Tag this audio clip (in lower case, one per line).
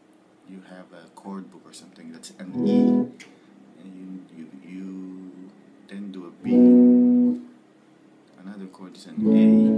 speech
plucked string instrument
music
guitar
musical instrument
strum